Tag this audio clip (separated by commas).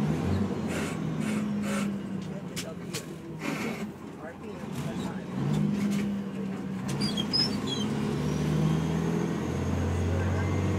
Vehicle, Speech, Truck